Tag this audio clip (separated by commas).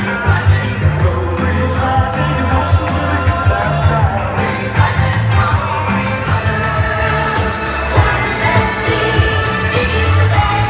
Music, inside a large room or hall